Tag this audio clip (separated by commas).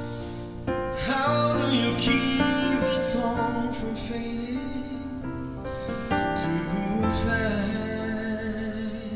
Music, Tender music